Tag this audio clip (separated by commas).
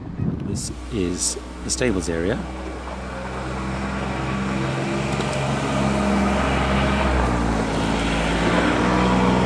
Speech, Car passing by